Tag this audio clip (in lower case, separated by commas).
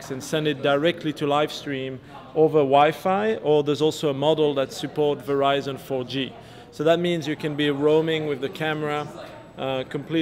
speech